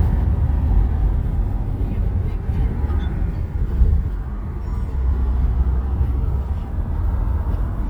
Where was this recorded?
in a car